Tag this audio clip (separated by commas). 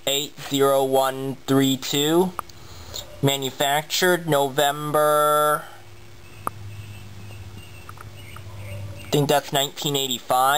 Speech